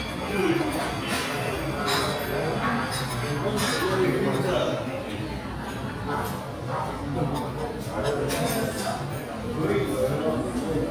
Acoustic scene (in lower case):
restaurant